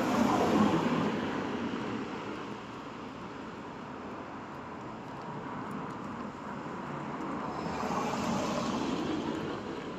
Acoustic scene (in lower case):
street